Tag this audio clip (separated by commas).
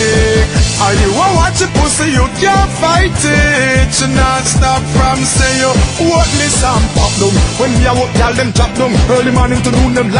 Music